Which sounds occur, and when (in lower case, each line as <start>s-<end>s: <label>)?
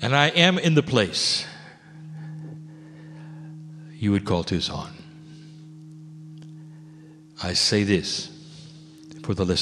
0.0s-1.4s: man speaking
0.0s-9.6s: background noise
1.4s-2.0s: breathing
2.0s-2.5s: breathing
2.3s-2.4s: generic impact sounds
2.6s-3.5s: breathing
3.1s-3.2s: clicking
3.5s-3.6s: clicking
3.7s-5.0s: man speaking
5.0s-5.7s: breathing
5.8s-6.0s: clicking
6.3s-6.5s: clicking
6.6s-7.2s: breathing
7.3s-8.3s: man speaking
8.4s-9.0s: breathing
9.0s-9.3s: clicking
9.2s-9.6s: man speaking